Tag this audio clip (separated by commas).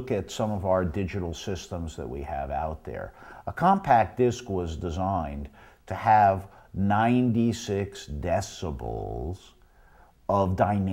Speech